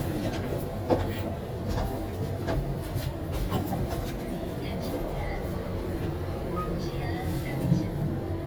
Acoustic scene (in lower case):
elevator